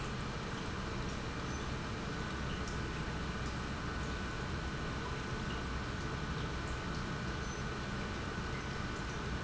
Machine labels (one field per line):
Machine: pump